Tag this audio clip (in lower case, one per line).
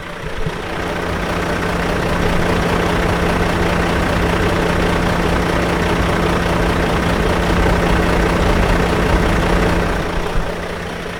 motor vehicle (road)
truck
vehicle